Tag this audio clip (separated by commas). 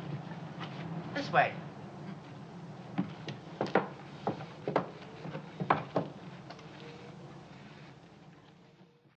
Speech, footsteps